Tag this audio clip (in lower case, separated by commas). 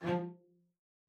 musical instrument, bowed string instrument, music